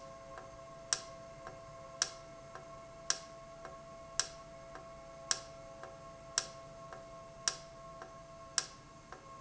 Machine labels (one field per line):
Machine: valve